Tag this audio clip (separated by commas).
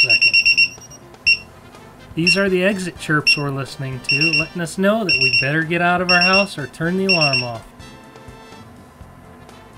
Alarm clock